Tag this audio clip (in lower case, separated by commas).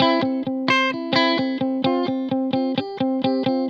guitar, plucked string instrument, musical instrument, music, electric guitar